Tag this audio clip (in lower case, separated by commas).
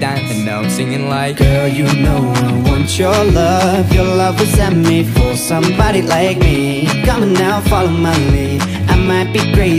male singing